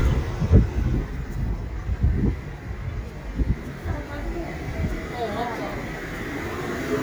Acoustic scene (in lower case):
residential area